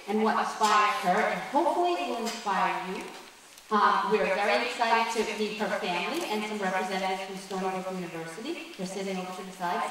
An adult female is speaking